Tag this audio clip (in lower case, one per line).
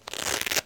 home sounds